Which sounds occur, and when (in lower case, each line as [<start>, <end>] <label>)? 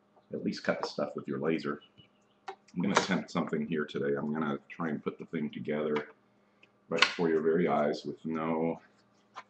[0.00, 9.45] mechanisms
[0.09, 0.20] generic impact sounds
[0.22, 1.77] male speech
[0.76, 0.85] generic impact sounds
[1.66, 2.37] chirp
[2.42, 2.50] generic impact sounds
[2.62, 2.70] clicking
[2.68, 4.57] male speech
[2.93, 3.04] generic impact sounds
[3.43, 3.52] generic impact sounds
[4.20, 4.26] clicking
[4.66, 6.12] male speech
[5.92, 6.02] generic impact sounds
[6.59, 6.66] clicking
[6.87, 8.83] male speech
[6.94, 7.16] generic impact sounds
[8.31, 8.37] clicking
[8.70, 8.80] clicking
[8.95, 9.04] clicking
[9.14, 9.22] clicking
[9.34, 9.43] generic impact sounds